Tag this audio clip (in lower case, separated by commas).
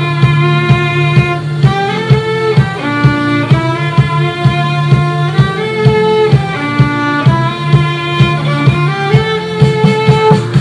musical instrument, music, violin